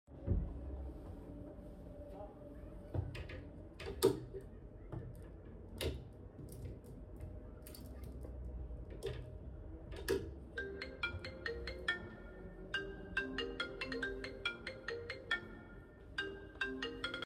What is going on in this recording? I opened the wardrobe, rummaged through the hangers, then the phone rang.